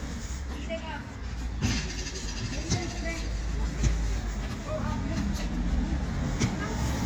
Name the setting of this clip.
residential area